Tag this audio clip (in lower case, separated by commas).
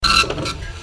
mechanisms, printer